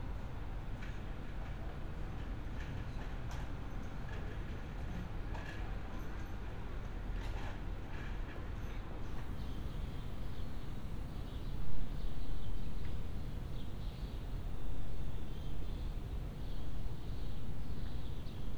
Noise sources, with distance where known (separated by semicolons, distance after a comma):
background noise